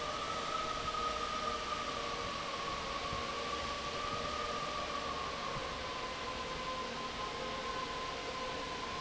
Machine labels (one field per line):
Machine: fan